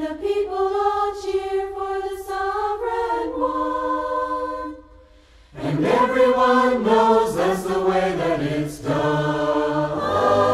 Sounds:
music

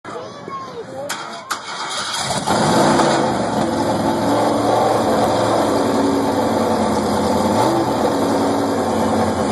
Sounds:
engine, car, vehicle

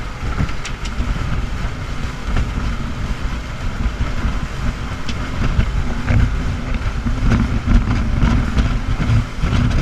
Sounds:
water vehicle, motorboat, vehicle

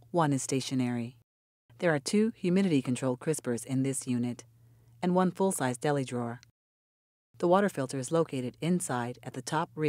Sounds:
speech

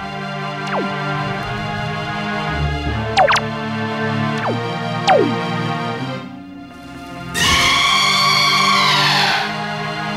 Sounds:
music

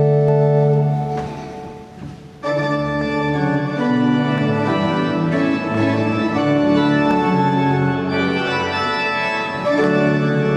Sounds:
piano, musical instrument, keyboard (musical), music

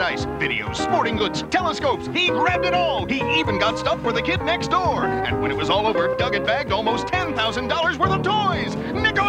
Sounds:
music, speech

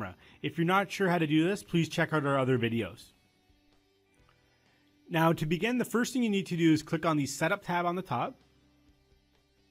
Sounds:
speech

